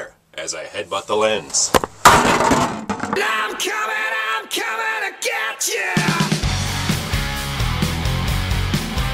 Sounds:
Speech, Music

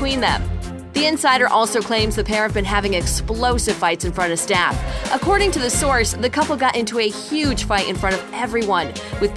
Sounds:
Speech, Music

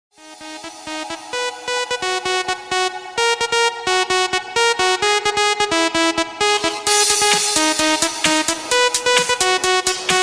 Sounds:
Music, Electronic dance music

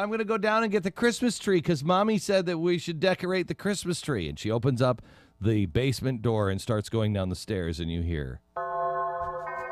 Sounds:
Speech, Music

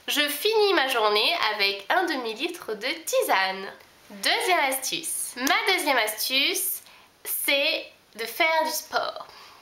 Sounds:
Speech

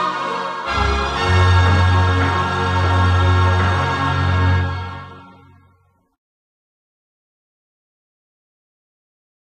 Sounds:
Soundtrack music, Music

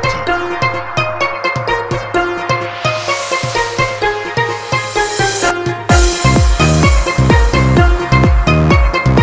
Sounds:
Music

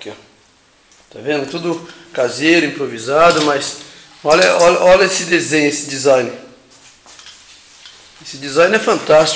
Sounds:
Speech

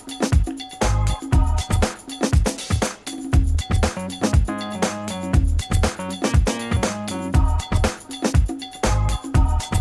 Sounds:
Music

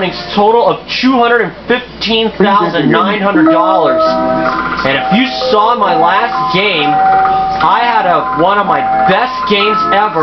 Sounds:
Speech

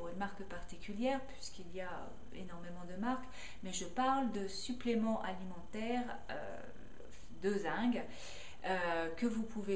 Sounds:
Speech

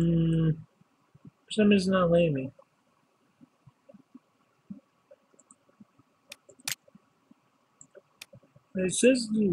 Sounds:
Speech, Clicking

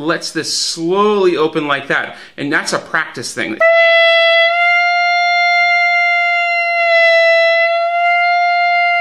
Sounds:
playing clarinet

